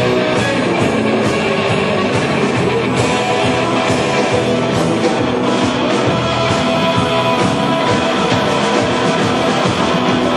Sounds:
guitar, rock and roll, music, plucked string instrument, musical instrument

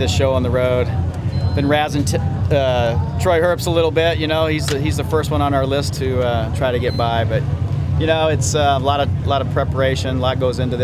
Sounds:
speech

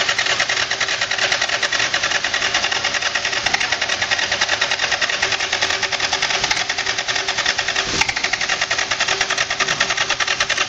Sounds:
rattle, engine

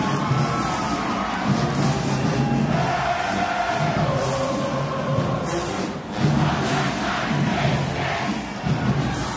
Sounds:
people marching

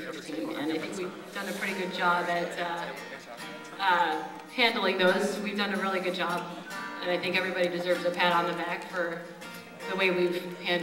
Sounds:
speech, music

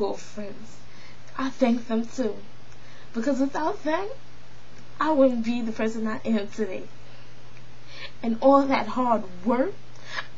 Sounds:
speech, narration

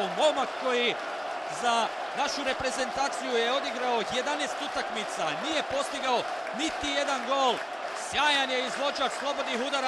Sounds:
speech

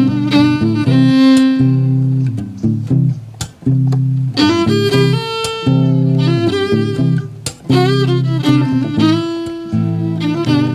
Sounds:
music, pizzicato, fiddle, musical instrument

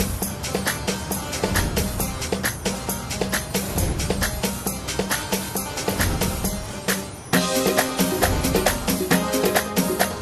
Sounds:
music

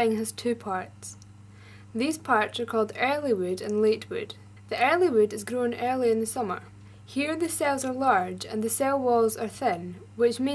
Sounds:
speech

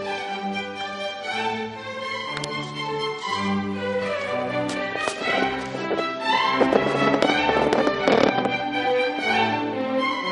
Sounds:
music, violin, musical instrument

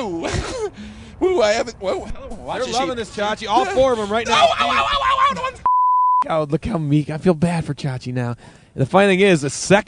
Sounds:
speech

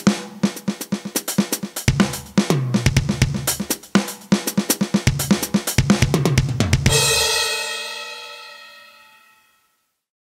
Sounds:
musical instrument, drum, music, drum kit

